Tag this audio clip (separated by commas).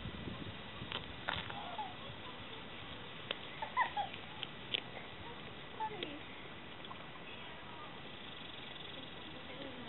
Speech, Animal